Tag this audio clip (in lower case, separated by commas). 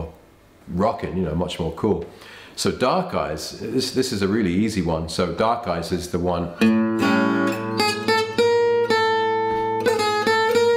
acoustic guitar, musical instrument, music, plucked string instrument, speech, guitar, strum